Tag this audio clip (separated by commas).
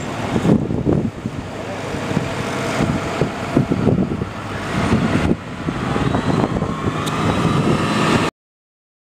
Vehicle, Truck